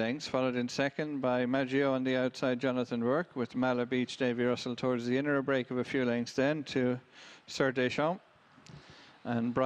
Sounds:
speech

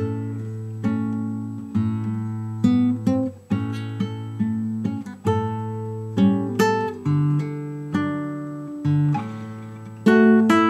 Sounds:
plucked string instrument, guitar, acoustic guitar, musical instrument, music

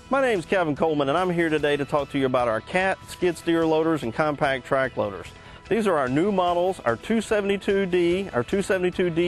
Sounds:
speech, music

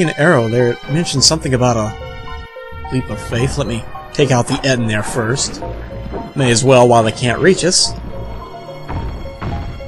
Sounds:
music, speech

